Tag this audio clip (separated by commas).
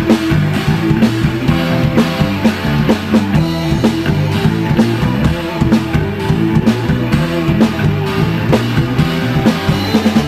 Drum, Piano, Keyboard (musical), Musical instrument, Music